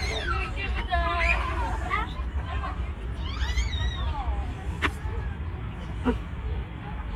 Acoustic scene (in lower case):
park